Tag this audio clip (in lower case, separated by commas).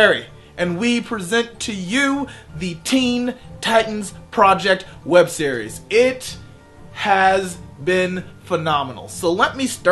speech, music